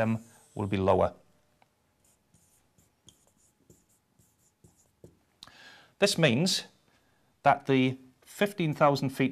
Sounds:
Speech, inside a small room

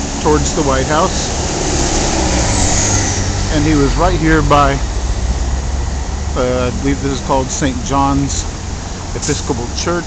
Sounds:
Vehicle, Car, Speech, outside, urban or man-made

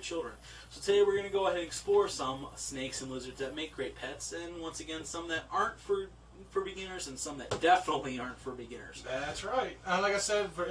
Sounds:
Speech, inside a small room

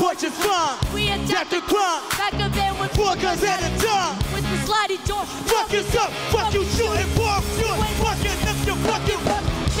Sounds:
rapping

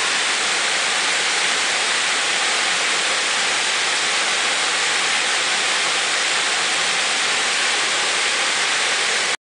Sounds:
Waterfall, waterfall burbling

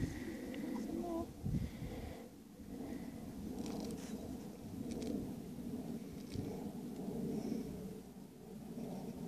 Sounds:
ass braying

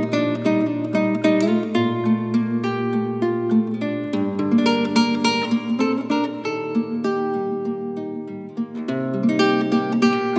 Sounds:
Music

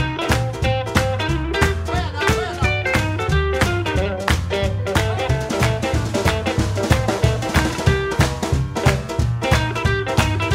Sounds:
Speech, Music, Strum, Musical instrument, Guitar, Plucked string instrument

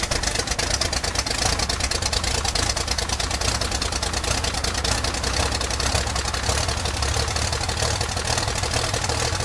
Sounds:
Heavy engine (low frequency), revving, Vehicle

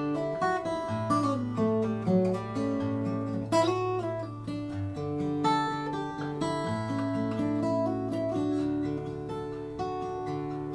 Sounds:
Music, Musical instrument, Plucked string instrument, Acoustic guitar, Guitar

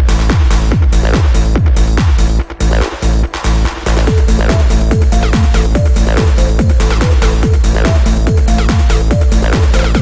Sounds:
Music, Electronic music, Trance music

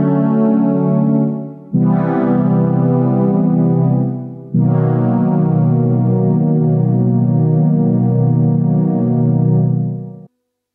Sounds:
Music, Piano, Synthesizer, Keyboard (musical), Musical instrument

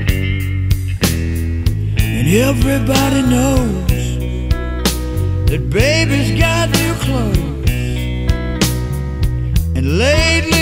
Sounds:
Music

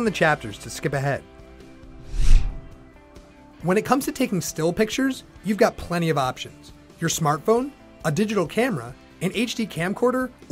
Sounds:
Speech, Music

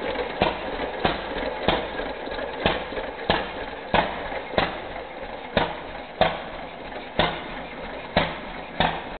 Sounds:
Engine

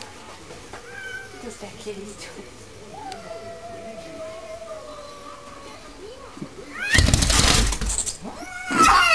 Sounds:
Animal, Speech, pets, Cat

